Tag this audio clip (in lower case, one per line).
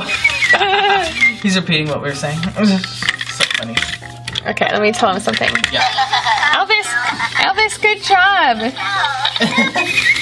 music
speech